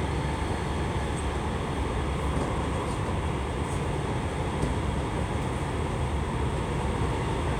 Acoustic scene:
subway train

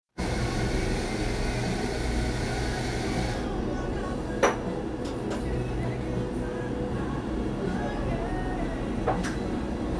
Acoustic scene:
cafe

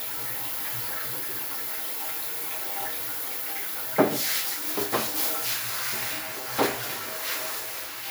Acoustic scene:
restroom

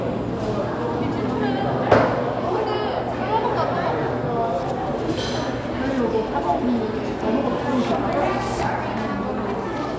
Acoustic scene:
cafe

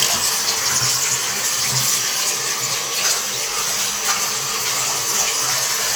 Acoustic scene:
restroom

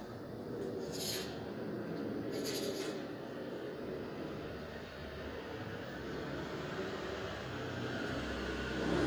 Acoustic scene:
residential area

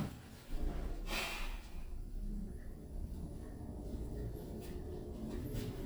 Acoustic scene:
elevator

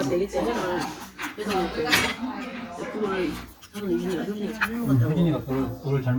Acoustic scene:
restaurant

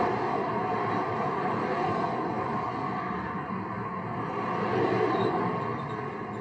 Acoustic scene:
street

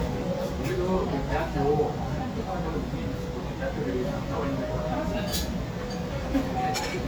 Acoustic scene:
restaurant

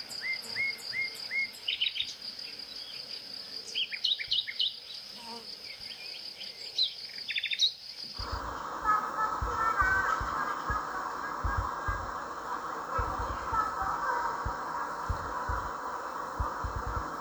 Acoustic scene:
park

